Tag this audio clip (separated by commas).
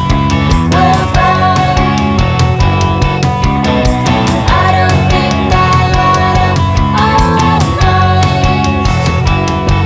Echo, Music